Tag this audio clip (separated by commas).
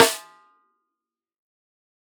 Snare drum, Music, Musical instrument, Drum, Percussion